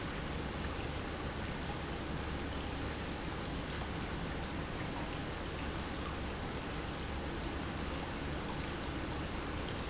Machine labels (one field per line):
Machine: pump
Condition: normal